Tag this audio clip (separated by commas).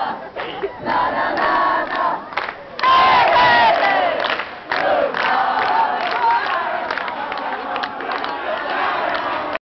Speech